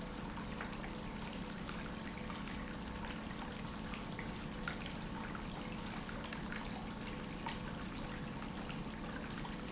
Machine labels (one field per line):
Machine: pump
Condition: normal